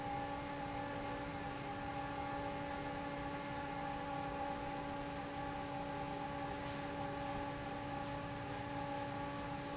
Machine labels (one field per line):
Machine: fan